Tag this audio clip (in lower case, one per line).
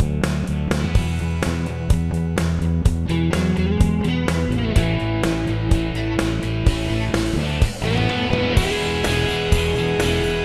music